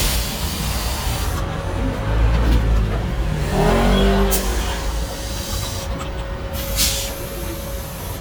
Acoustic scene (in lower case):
street